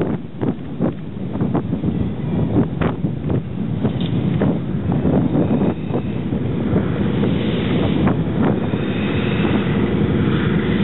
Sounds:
wind
wind noise (microphone)

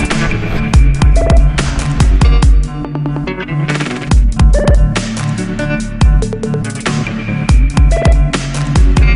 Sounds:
music

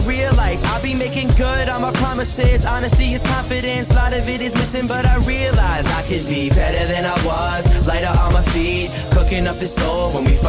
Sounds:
music

